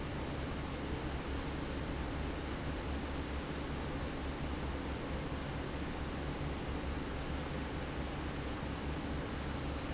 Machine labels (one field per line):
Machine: fan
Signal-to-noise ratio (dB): -6 dB